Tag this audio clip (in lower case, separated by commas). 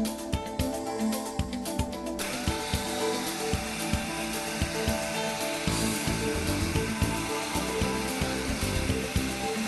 music